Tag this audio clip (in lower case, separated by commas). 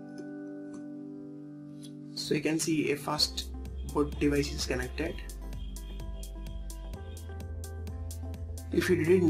acoustic guitar